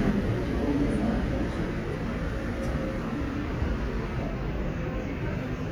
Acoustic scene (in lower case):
subway station